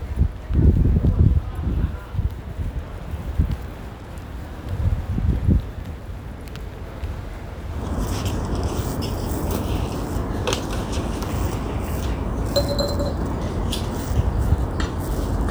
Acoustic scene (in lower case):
residential area